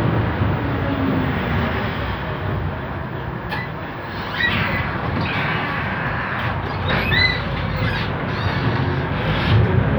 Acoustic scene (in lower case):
bus